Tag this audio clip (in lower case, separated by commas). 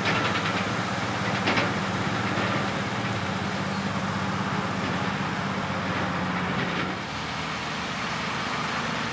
vehicle, truck